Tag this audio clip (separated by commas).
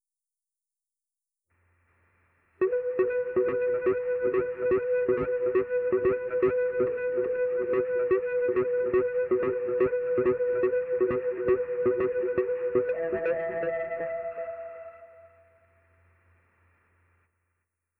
Music, Keyboard (musical), Musical instrument